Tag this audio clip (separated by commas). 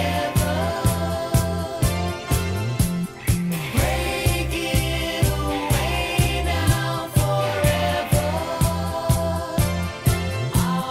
Music, Independent music